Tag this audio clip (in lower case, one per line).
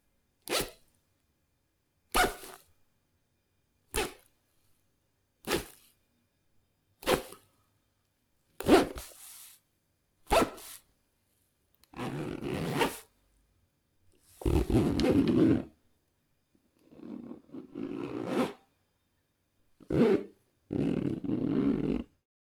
zipper (clothing)
domestic sounds